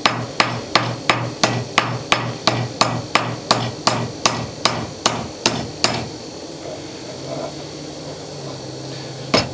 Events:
[0.00, 9.53] mechanisms
[0.01, 0.22] hammer
[0.37, 0.56] hammer
[0.71, 0.92] hammer
[1.05, 1.29] hammer
[1.40, 1.61] hammer
[1.74, 1.95] hammer
[2.08, 2.28] hammer
[2.45, 2.63] hammer
[2.79, 2.99] hammer
[3.13, 3.32] hammer
[3.48, 3.70] hammer
[3.85, 4.07] hammer
[4.24, 4.44] hammer
[4.63, 4.85] hammer
[5.02, 5.24] hammer
[5.43, 5.63] hammer
[5.81, 5.97] hammer
[6.59, 6.84] surface contact
[7.07, 7.65] surface contact
[8.01, 8.17] surface contact
[8.37, 8.62] surface contact
[8.83, 9.17] generic impact sounds
[9.32, 9.42] hammer

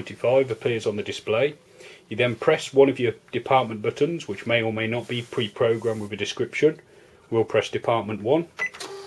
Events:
[0.00, 1.50] male speech
[0.00, 9.05] background noise
[1.74, 2.00] breathing
[2.05, 3.14] male speech
[3.25, 6.73] male speech
[4.93, 5.55] surface contact
[5.71, 6.11] surface contact
[6.86, 7.15] breathing
[7.27, 8.40] male speech
[8.55, 8.71] bleep

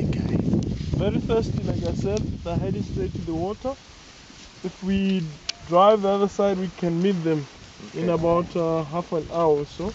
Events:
[0.00, 0.32] man speaking
[0.00, 3.99] wind noise (microphone)
[0.00, 9.94] rustle
[0.55, 0.61] tick
[0.88, 2.17] man speaking
[0.89, 9.94] conversation
[1.80, 1.90] tick
[2.11, 2.18] tick
[2.42, 3.73] man speaking
[4.58, 5.38] man speaking
[5.04, 5.14] tick
[5.34, 5.70] bird call
[5.45, 5.54] tick
[5.66, 7.46] man speaking
[7.74, 9.65] man speaking
[9.78, 9.94] man speaking

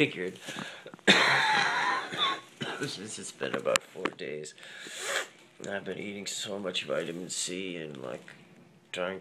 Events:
[0.01, 9.20] background noise
[0.01, 0.63] male speech
[0.41, 0.67] generic impact sounds
[0.45, 0.98] breathing
[0.84, 1.03] generic impact sounds
[0.98, 2.29] cough
[2.46, 3.21] cough
[2.75, 4.54] male speech
[3.35, 3.77] generic impact sounds
[3.97, 4.10] generic impact sounds
[4.55, 5.03] breathing
[4.94, 5.26] sniff
[5.51, 8.14] male speech
[5.52, 5.76] generic impact sounds
[7.86, 8.02] generic impact sounds

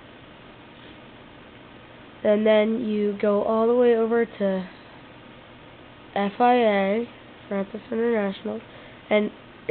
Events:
[0.00, 9.70] mechanisms
[0.74, 0.97] generic impact sounds
[2.23, 4.72] kid speaking
[3.19, 3.24] tick
[4.73, 5.00] breathing
[6.09, 7.08] kid speaking
[7.52, 8.59] kid speaking
[8.73, 8.97] breathing
[9.08, 9.31] kid speaking

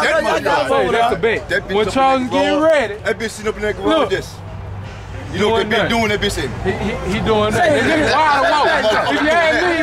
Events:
[0.00, 4.34] male speech
[0.00, 9.82] conversation
[0.00, 9.82] crowd
[0.00, 9.82] motor vehicle (road)
[4.84, 5.28] generic impact sounds
[5.25, 6.43] male speech
[6.62, 9.82] male speech

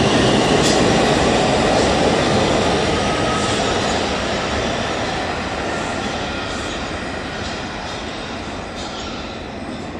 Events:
[0.00, 9.95] subway
[2.87, 3.59] train wheels squealing
[8.69, 9.43] train wheels squealing

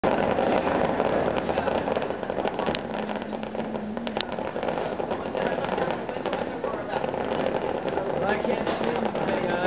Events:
[0.00, 9.65] firecracker
[1.32, 9.65] hubbub
[8.12, 9.65] man speaking

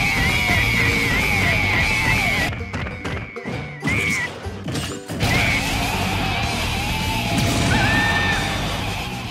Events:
[0.01, 9.30] video game sound
[0.01, 9.30] music

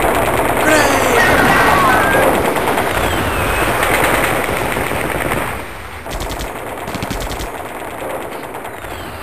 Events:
[0.00, 5.65] machine gun
[0.00, 9.22] wind
[0.65, 1.17] man speaking
[1.14, 2.27] sound effect
[2.76, 3.65] brief tone
[6.05, 9.17] machine gun
[8.66, 9.22] brief tone

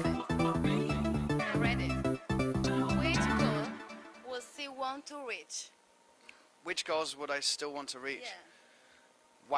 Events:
[0.00, 0.26] female singing
[0.00, 5.04] music
[0.00, 9.55] background noise
[0.59, 1.08] female singing
[1.37, 1.82] man speaking
[1.41, 9.55] conversation
[2.60, 3.76] female singing
[3.01, 3.63] man speaking
[4.19, 5.78] man speaking
[6.16, 6.57] breathing
[6.64, 8.42] man speaking
[8.19, 8.48] man speaking
[8.48, 9.19] breathing

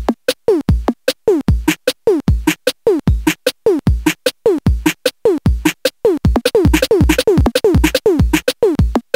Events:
[0.00, 0.11] music
[0.00, 9.15] background noise
[0.22, 0.31] music
[0.44, 0.90] music
[1.03, 1.10] music
[1.25, 1.74] music
[1.86, 1.92] music
[2.01, 2.52] music
[2.65, 2.69] music
[2.83, 3.32] music
[3.43, 3.49] music
[3.63, 4.13] music
[4.23, 4.29] music
[4.42, 4.90] music
[5.03, 5.08] music
[5.22, 5.71] music
[5.82, 5.88] music
[6.02, 8.52] music
[8.61, 8.98] music
[9.10, 9.15] music

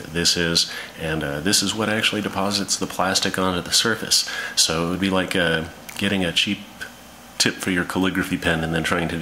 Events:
[0.00, 9.21] mechanisms
[0.11, 0.63] man speaking
[0.63, 0.90] breathing
[0.92, 4.24] man speaking
[4.22, 4.53] breathing
[4.57, 5.65] man speaking
[5.82, 5.98] tick
[5.96, 6.50] man speaking
[6.73, 6.85] tick
[7.33, 9.21] man speaking

